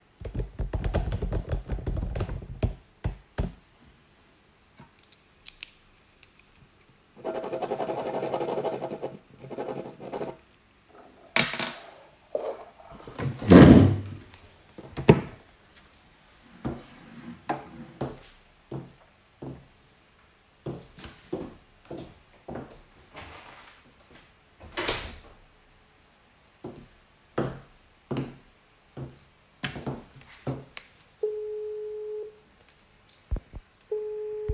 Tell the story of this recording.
I was working in the office, then went to clise the door, which my college accidentally left open, and went back to my place to call my friend.